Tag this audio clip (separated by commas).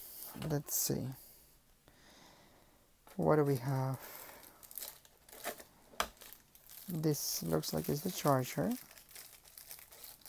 Speech, crinkling